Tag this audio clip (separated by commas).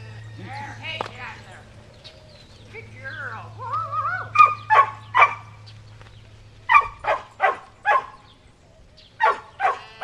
Speech, Bow-wow, Sheep, canids, Animal, Yip, pets, Dog